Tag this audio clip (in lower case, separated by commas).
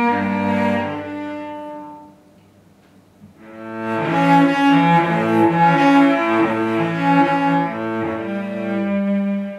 music, musical instrument, cello, guitar